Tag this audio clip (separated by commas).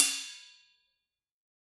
Percussion, Cymbal, Musical instrument, Music, Hi-hat